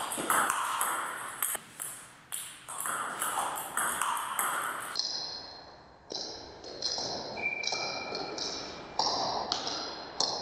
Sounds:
playing table tennis

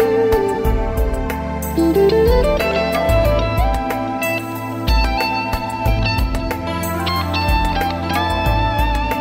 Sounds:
Musical instrument, Music, Plucked string instrument, Guitar, Strum

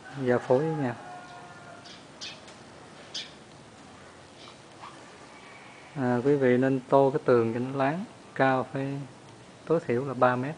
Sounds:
Speech

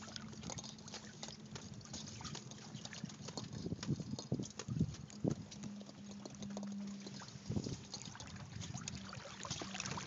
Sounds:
sailing ship

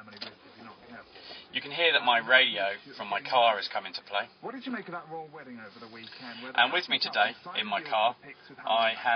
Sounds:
Speech

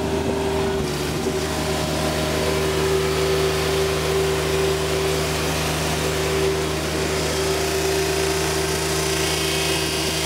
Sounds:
Engine, Vehicle, Medium engine (mid frequency)

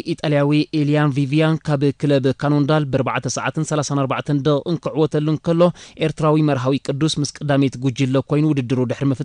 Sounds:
Speech

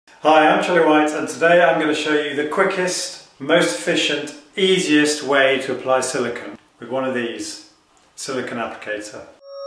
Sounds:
Speech

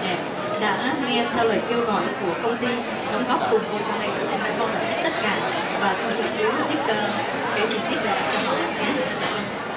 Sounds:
Speech

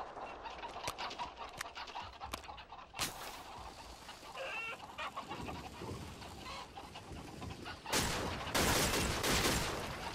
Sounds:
rooster, Cluck

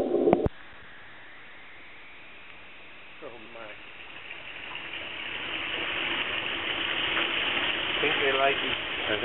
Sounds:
Speech

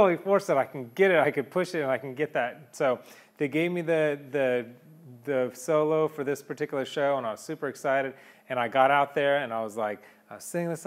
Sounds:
Speech

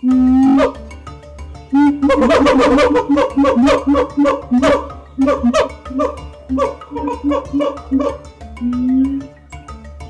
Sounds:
gibbon howling

